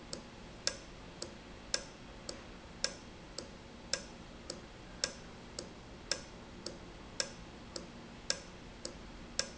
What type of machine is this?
valve